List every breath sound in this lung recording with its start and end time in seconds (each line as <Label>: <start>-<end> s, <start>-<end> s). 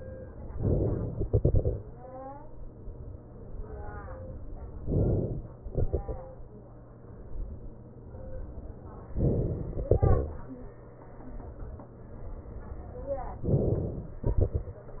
Inhalation: 0.53-1.10 s, 4.86-5.44 s, 9.19-9.85 s, 13.48-14.16 s
Exhalation: 1.10-2.58 s, 5.42-6.57 s, 9.85-10.98 s, 14.16-15.00 s